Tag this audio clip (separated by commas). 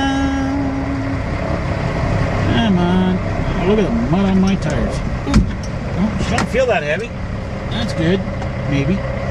Speech, Vehicle, Truck